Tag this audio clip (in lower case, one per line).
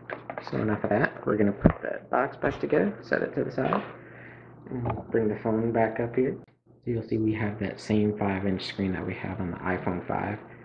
inside a small room
speech